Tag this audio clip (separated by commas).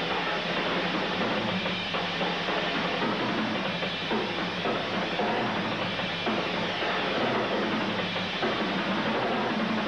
Drum kit, Bass drum, Drum, Music, Musical instrument